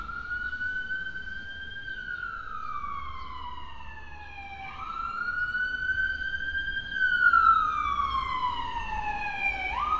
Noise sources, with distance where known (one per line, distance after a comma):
siren